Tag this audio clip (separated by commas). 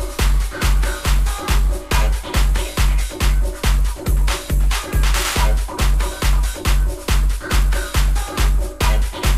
Music